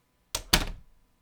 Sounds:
door, slam, domestic sounds

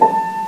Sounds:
musical instrument, piano, keyboard (musical), music

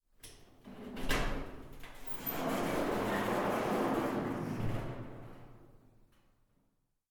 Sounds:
sliding door, door, domestic sounds

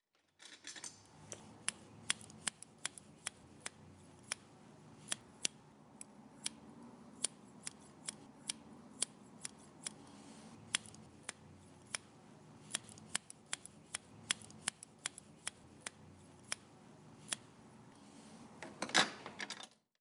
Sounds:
home sounds, scissors

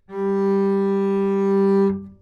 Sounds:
bowed string instrument, music, musical instrument

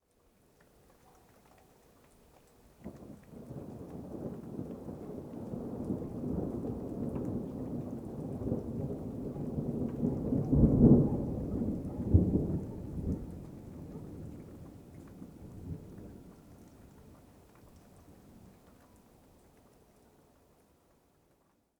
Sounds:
thunder, thunderstorm

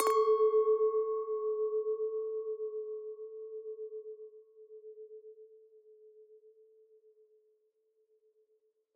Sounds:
glass, clink

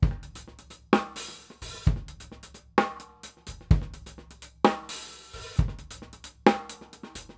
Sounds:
music, percussion, drum kit, musical instrument

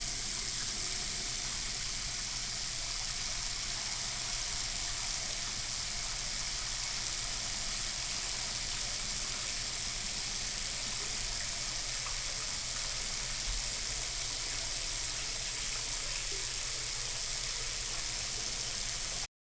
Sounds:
domestic sounds, bathtub (filling or washing)

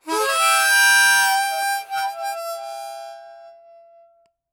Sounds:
music, musical instrument, harmonica

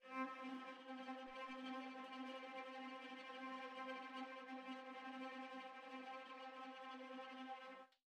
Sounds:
bowed string instrument, musical instrument, music

